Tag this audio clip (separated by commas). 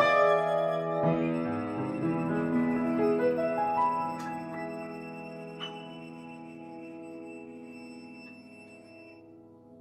Musical instrument, Music, fiddle